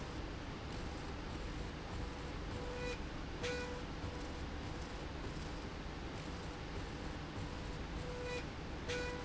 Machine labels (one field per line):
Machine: slide rail